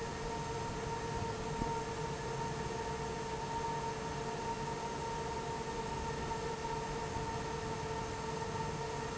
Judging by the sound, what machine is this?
fan